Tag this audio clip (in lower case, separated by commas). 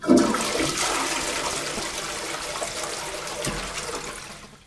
domestic sounds, toilet flush